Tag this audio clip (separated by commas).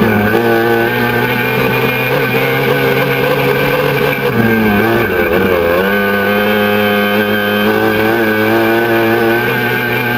Vehicle, Motorboat